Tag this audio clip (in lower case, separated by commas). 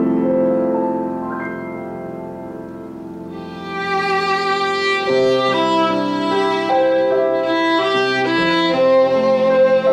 bowed string instrument, music, fiddle, musical instrument, piano